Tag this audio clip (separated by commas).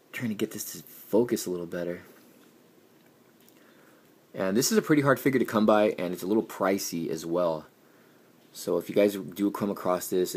inside a small room, Speech